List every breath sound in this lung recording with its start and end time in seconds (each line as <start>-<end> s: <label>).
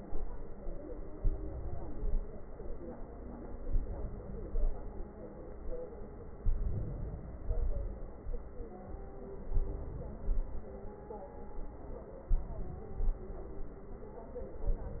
1.16-2.12 s: inhalation
2.16-3.00 s: exhalation
3.65-4.48 s: inhalation
4.48-5.13 s: exhalation
6.46-7.43 s: inhalation
7.43-8.27 s: exhalation
9.50-10.22 s: inhalation
10.22-11.02 s: exhalation
12.29-13.22 s: inhalation
13.22-13.81 s: exhalation
14.55-15.00 s: inhalation